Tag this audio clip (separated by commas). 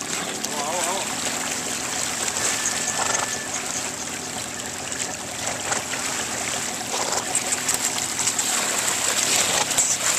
Horse, Animal, Speech